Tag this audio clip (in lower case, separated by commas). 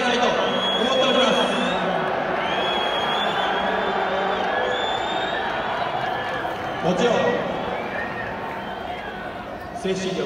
people booing